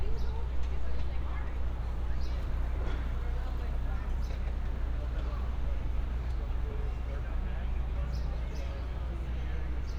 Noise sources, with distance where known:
person or small group talking

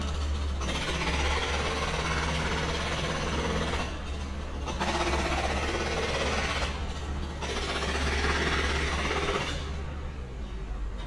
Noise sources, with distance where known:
jackhammer, near

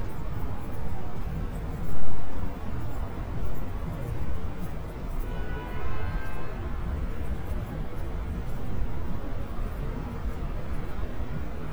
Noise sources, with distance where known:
car horn, far

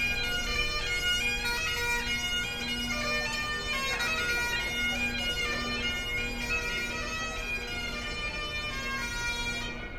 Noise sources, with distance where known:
music from a fixed source, near

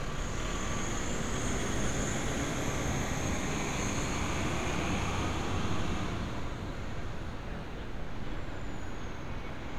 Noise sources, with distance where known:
large-sounding engine, near

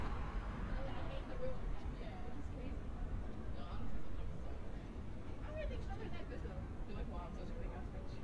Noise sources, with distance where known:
person or small group talking, near

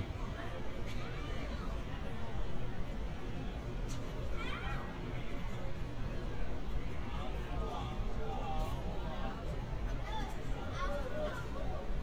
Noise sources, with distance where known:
person or small group talking, near

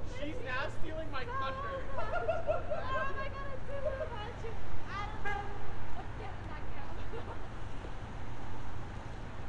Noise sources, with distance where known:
car horn, near
person or small group shouting, near

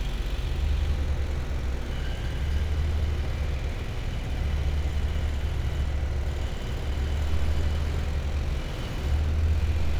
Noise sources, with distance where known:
engine of unclear size, far

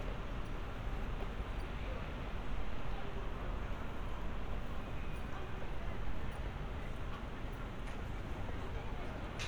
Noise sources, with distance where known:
person or small group talking, far

